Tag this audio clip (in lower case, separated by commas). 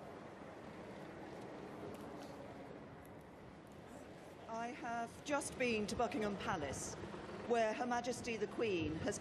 woman speaking, speech, narration